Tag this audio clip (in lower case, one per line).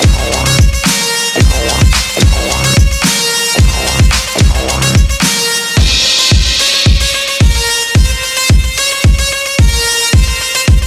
caw
music